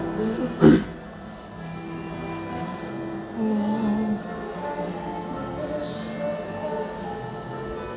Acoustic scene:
cafe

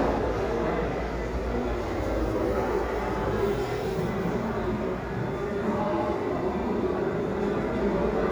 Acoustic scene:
restaurant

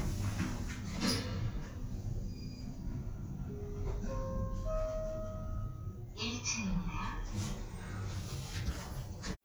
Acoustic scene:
elevator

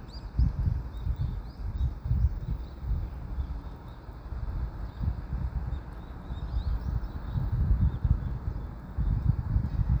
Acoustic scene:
park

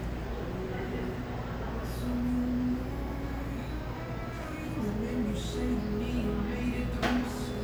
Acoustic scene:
cafe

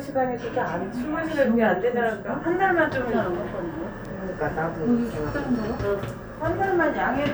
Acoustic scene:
elevator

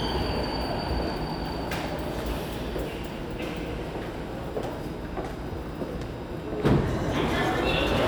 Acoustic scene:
subway station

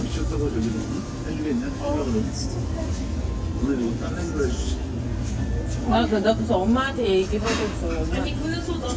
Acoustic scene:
crowded indoor space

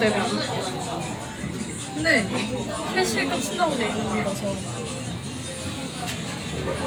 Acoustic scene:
crowded indoor space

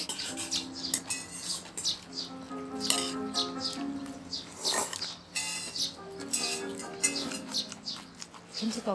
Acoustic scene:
restaurant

